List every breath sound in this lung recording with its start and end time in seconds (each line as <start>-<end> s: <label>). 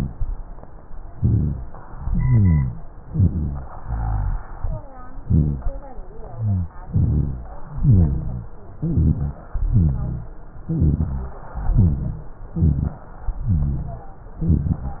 1.14-1.73 s: inhalation
1.14-1.73 s: rhonchi
1.97-2.83 s: exhalation
1.97-2.83 s: rhonchi
3.09-3.68 s: inhalation
3.09-3.68 s: rhonchi
3.79-4.38 s: exhalation
3.79-4.38 s: rhonchi
5.18-5.77 s: inhalation
5.18-5.77 s: rhonchi
6.26-6.76 s: exhalation
6.26-6.76 s: rhonchi
6.89-7.59 s: inhalation
6.89-7.59 s: rhonchi
7.80-8.58 s: exhalation
7.80-8.58 s: rhonchi
8.84-9.43 s: inhalation
8.84-9.43 s: rhonchi
9.64-10.42 s: exhalation
9.64-10.42 s: rhonchi
10.66-11.44 s: inhalation
10.66-11.44 s: rhonchi
11.57-12.35 s: exhalation
11.57-12.35 s: rhonchi
12.52-13.07 s: inhalation
12.52-13.07 s: rhonchi
13.34-14.18 s: exhalation
13.34-14.18 s: rhonchi
14.36-15.00 s: inhalation
14.36-15.00 s: rhonchi